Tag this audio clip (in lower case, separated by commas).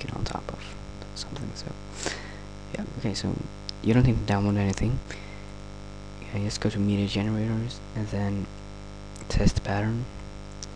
speech, static